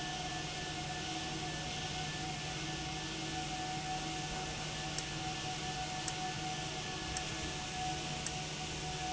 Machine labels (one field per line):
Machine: valve